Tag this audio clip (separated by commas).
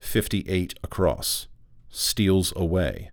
man speaking, Speech, Human voice